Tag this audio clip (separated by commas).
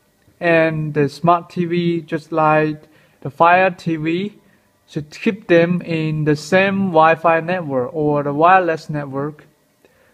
Speech